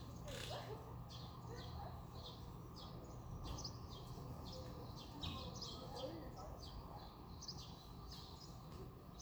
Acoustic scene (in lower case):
residential area